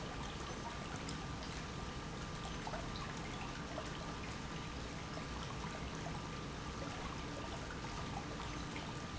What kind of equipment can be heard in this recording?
pump